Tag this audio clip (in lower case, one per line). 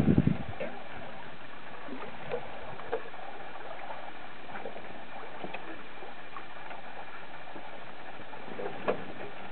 outside, rural or natural
sailing ship
boat
ocean
sailing
vehicle